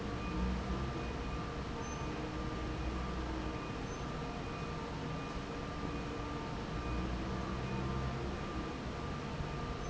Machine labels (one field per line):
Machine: fan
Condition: normal